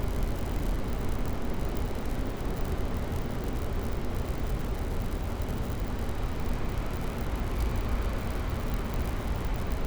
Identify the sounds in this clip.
engine of unclear size